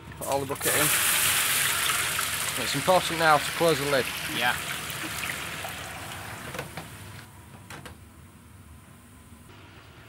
People speaking and oil bubbling and popping